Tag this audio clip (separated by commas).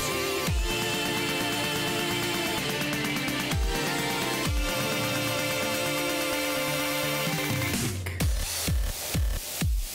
Music